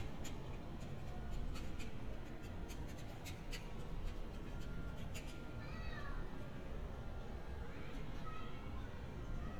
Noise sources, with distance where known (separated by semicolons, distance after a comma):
background noise